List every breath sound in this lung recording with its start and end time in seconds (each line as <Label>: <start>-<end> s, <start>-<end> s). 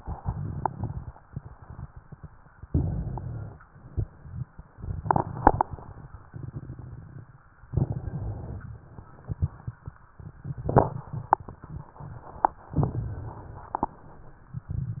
Inhalation: 2.64-3.62 s, 7.66-8.83 s, 12.75-13.78 s
Rhonchi: 2.71-3.61 s